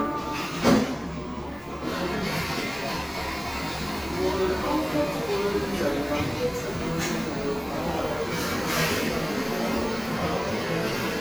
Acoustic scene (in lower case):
crowded indoor space